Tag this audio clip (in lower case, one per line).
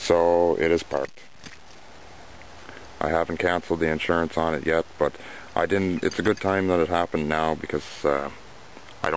speech